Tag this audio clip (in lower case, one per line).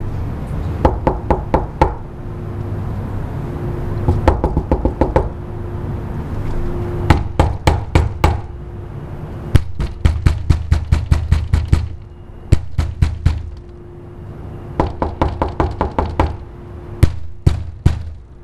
home sounds
knock
door